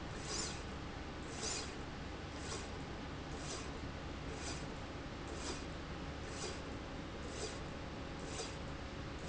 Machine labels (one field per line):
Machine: slide rail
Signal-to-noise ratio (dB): 0 dB